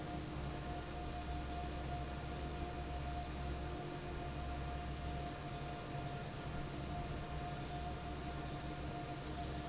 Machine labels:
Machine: fan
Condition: normal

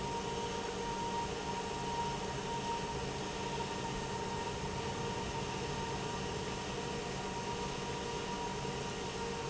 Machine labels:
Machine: pump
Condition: normal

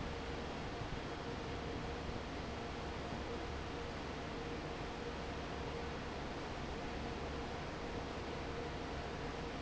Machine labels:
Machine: fan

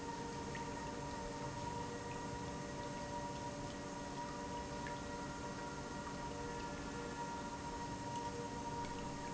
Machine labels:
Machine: pump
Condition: normal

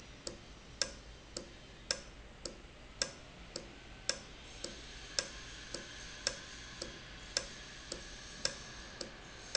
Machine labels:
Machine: valve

